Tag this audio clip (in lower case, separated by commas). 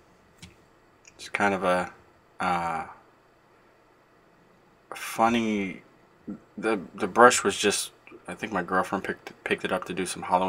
speech